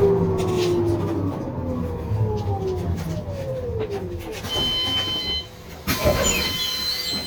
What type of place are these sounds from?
bus